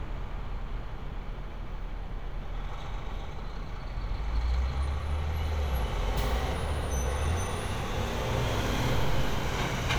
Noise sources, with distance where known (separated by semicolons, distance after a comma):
large-sounding engine